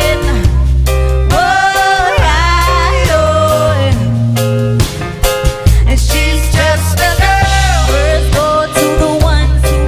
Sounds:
singing, music, inside a large room or hall

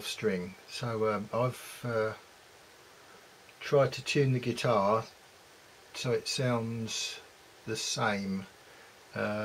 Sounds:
speech

